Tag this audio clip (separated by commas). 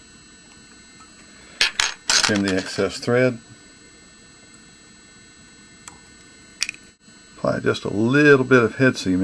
Speech